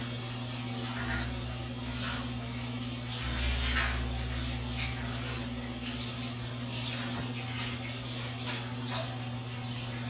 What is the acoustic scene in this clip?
restroom